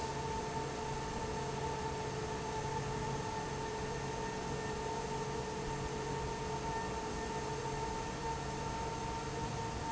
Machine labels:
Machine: fan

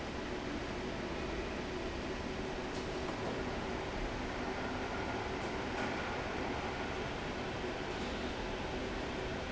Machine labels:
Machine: fan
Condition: normal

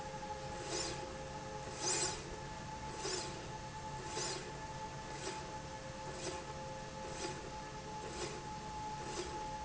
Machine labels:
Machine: slide rail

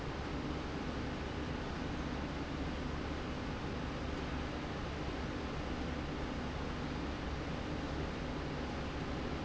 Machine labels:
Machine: slide rail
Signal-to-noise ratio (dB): -6 dB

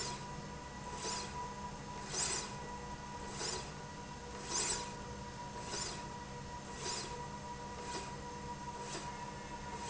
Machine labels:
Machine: slide rail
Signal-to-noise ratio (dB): 0 dB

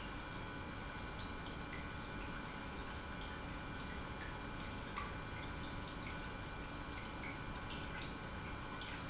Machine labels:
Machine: pump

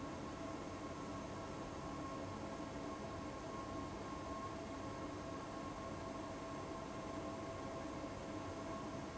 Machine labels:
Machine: fan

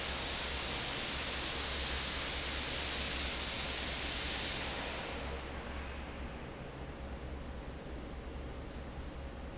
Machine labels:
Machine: fan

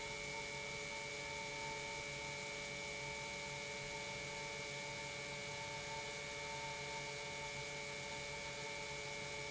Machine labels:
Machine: pump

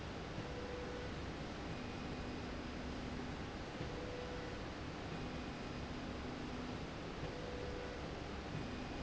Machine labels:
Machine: slide rail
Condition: normal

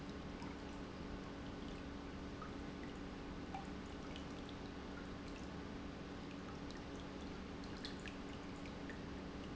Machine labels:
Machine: pump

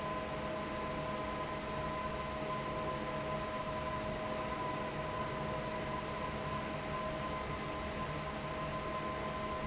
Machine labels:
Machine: fan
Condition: normal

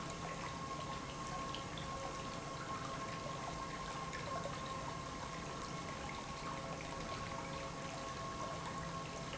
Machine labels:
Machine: pump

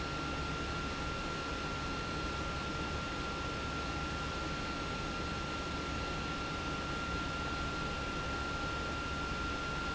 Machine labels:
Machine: pump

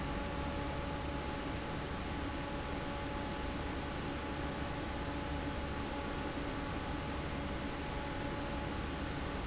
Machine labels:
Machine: fan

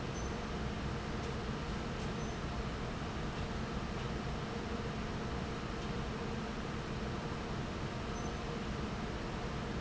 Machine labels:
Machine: fan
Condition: normal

